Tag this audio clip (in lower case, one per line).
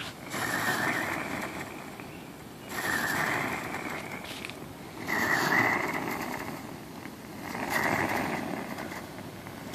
blowtorch igniting